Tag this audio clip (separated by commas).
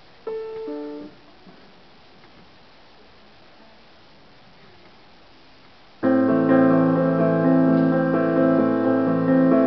Music